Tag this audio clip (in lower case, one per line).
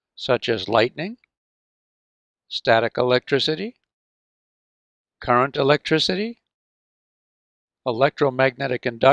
speech